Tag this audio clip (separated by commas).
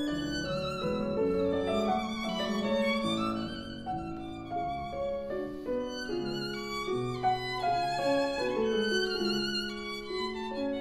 Music, Violin, Musical instrument